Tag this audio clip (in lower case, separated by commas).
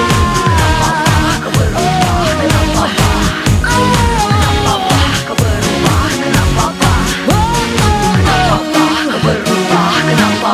music, pop music